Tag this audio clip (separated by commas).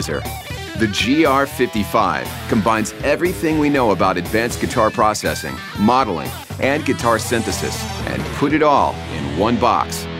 Music, Guitar, Speech, Plucked string instrument, Electric guitar, Musical instrument